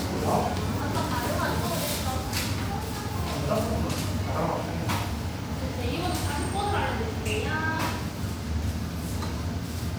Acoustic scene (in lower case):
cafe